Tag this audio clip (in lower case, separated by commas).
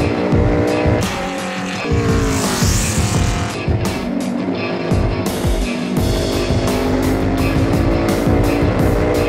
vehicle, music, car